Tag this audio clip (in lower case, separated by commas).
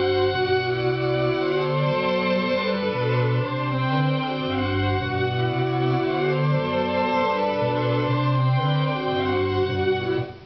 musical instrument, music